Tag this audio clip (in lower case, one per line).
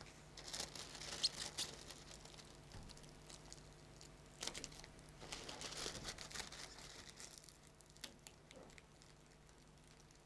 rowboat